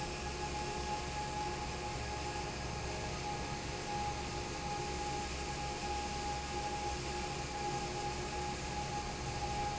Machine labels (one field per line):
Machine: fan